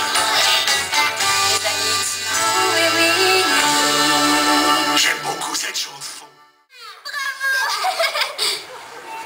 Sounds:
Baby laughter, Music, Speech, inside a large room or hall

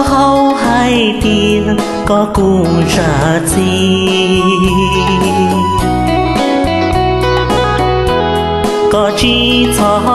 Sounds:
Music

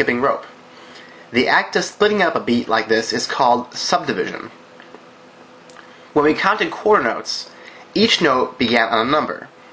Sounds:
Speech

